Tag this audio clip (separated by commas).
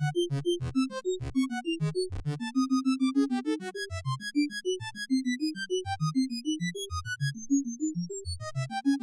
Music, Synthesizer